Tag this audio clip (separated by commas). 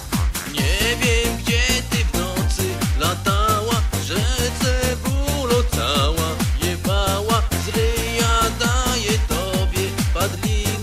Music